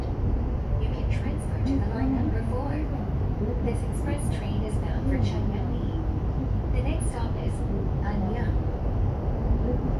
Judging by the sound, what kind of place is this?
subway train